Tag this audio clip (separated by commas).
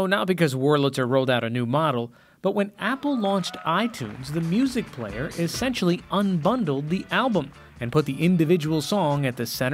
Music, Speech